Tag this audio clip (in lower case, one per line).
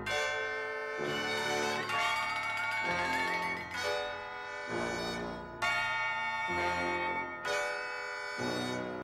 music